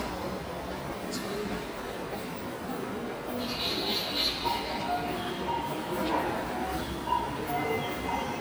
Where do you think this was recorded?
in a subway station